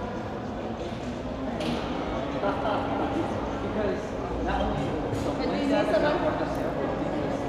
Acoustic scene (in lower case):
crowded indoor space